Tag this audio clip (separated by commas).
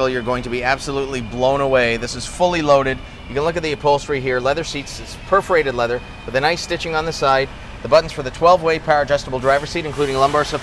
Speech